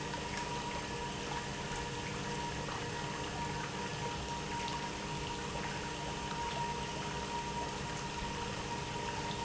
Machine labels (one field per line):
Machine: pump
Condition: normal